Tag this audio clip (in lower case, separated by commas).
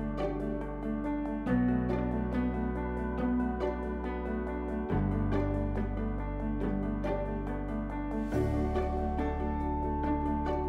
jazz, music